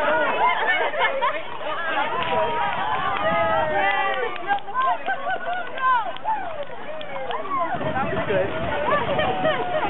People yelling and cheeping at an outside event